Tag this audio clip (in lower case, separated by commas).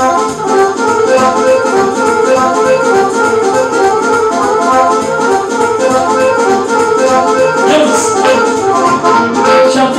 music